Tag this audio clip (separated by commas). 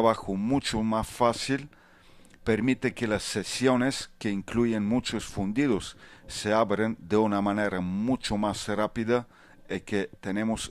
Speech